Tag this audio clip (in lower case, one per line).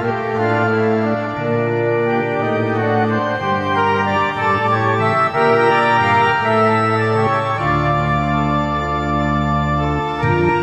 playing electronic organ